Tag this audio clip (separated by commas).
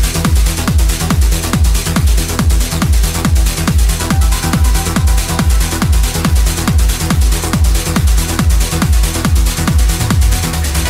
Music, Electronic music, Techno